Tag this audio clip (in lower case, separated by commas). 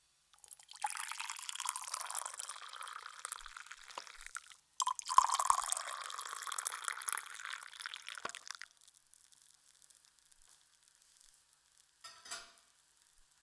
liquid